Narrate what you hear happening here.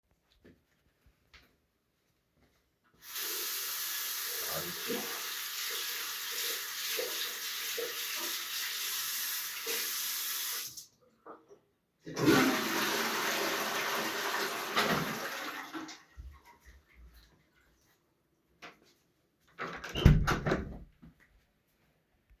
I wash my hands, flush the toilet and closed the door.